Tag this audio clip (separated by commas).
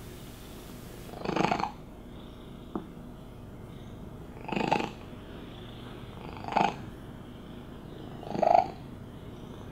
cat purring